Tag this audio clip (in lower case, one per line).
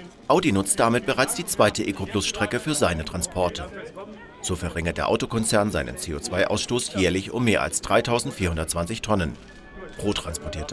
speech